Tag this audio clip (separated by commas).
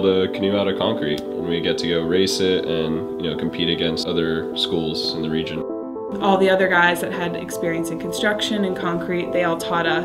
Music, Speech